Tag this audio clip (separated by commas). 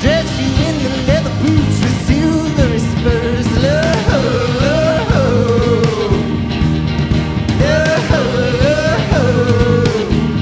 Funk, Music